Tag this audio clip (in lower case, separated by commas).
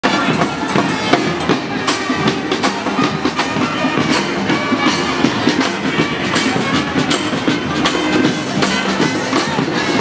people marching